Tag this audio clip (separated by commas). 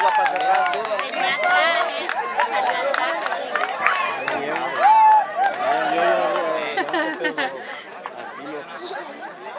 Speech